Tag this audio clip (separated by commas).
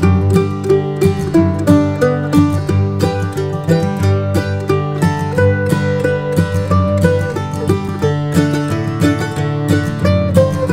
playing mandolin